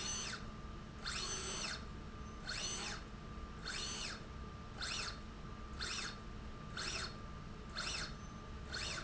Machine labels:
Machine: slide rail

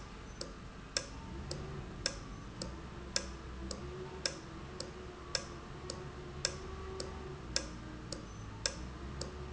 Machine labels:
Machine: valve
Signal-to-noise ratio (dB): 0 dB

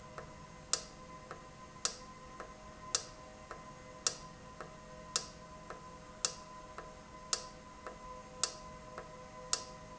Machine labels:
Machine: valve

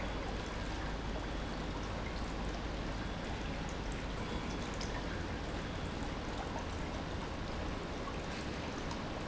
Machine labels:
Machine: pump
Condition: normal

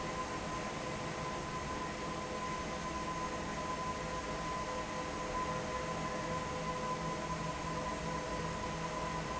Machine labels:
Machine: fan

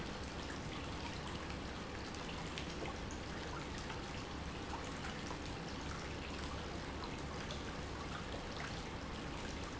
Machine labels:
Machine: pump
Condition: normal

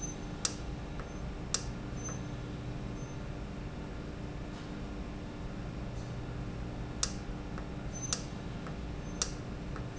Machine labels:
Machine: valve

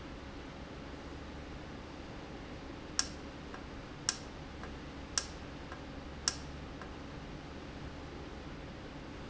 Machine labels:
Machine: valve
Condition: normal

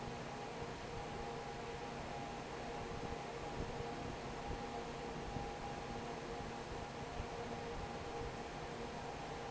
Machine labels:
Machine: fan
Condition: normal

